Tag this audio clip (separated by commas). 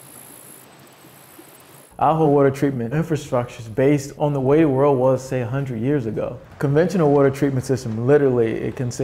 Speech